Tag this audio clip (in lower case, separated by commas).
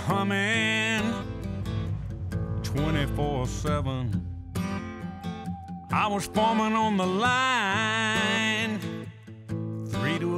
music